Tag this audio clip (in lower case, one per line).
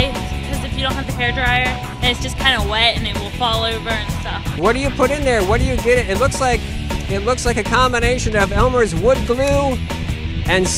speech
music